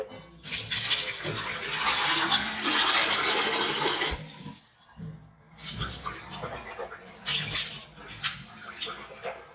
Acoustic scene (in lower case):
restroom